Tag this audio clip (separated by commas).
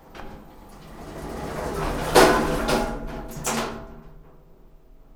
Door, Sliding door, home sounds